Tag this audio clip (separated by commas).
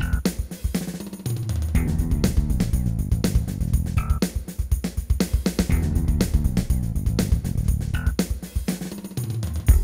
Music